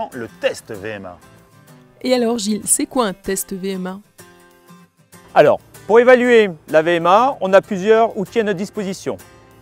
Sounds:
outside, urban or man-made, speech, music

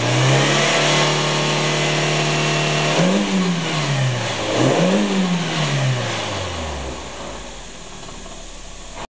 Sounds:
vehicle, accelerating, engine, car, medium engine (mid frequency), idling

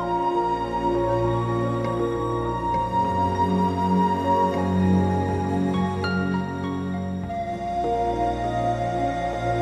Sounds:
music, new-age music

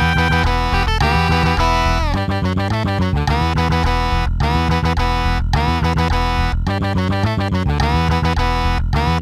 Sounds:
music, guitar, bass guitar, musical instrument

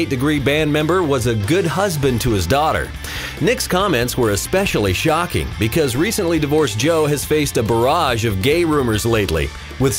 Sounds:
music, speech

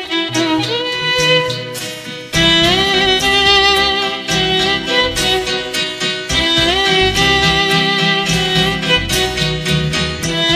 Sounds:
musical instrument, fiddle, music

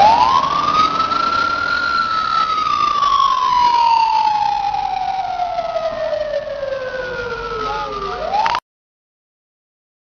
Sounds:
police car (siren), emergency vehicle, siren

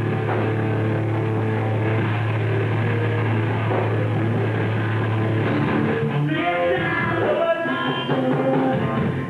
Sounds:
punk rock, music, rock music

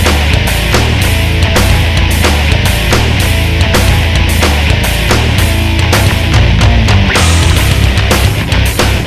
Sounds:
music, exciting music

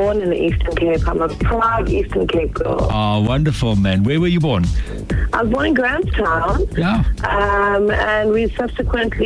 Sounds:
speech, music, radio

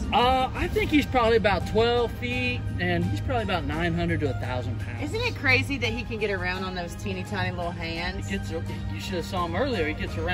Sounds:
alligators

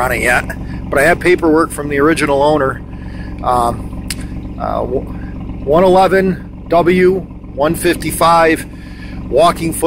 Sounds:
outside, urban or man-made, speech

